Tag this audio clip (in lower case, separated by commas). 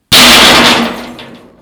tools